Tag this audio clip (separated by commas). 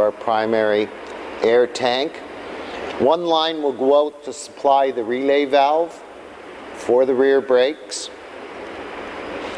Speech